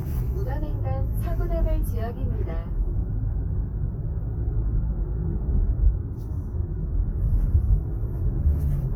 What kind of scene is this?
car